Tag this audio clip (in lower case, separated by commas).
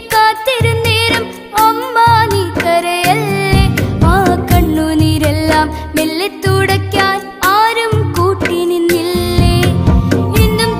music